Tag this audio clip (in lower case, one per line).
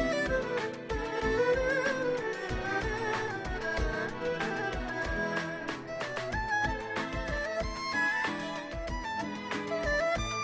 fiddle
musical instrument
music